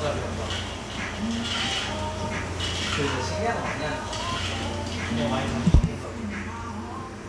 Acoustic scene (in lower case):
cafe